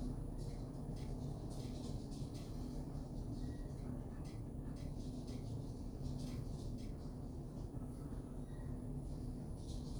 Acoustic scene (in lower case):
elevator